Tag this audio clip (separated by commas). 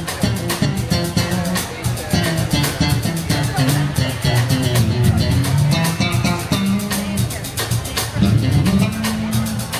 Music, Rock and roll, Drum, Speech, Guitar, Jazz, Musical instrument